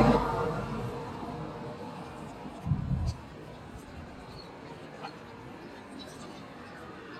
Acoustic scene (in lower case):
street